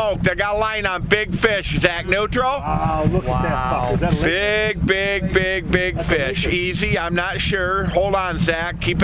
A man yells in the foreground as others talk nearby and a boat engine idles